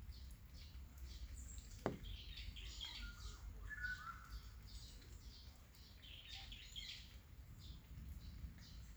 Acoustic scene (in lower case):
park